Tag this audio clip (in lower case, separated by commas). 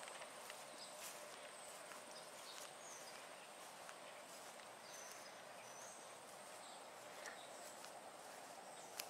footsteps